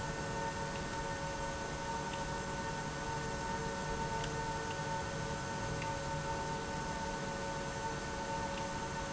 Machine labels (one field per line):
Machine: pump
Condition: abnormal